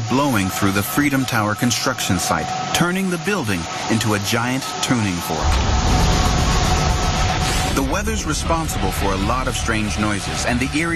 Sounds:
Speech

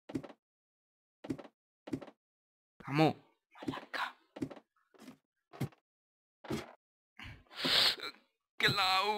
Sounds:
Speech

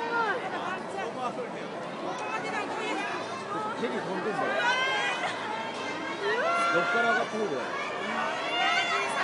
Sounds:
Speech

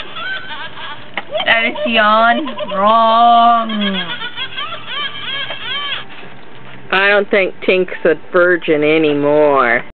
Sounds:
Speech

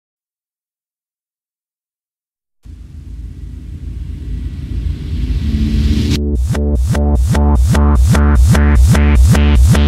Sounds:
Music

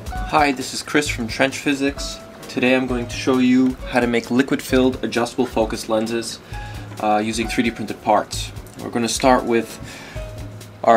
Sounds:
Speech, Music

